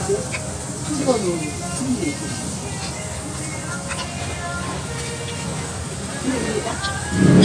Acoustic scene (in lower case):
restaurant